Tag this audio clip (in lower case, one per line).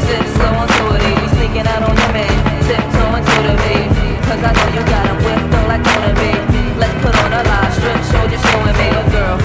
exciting music
music